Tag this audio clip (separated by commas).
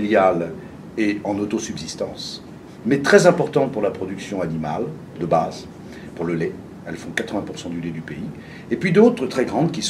Speech